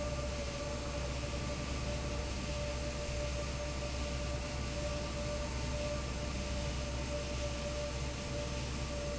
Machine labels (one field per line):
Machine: fan